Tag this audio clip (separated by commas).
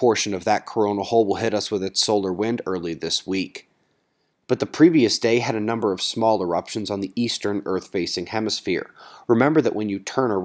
Speech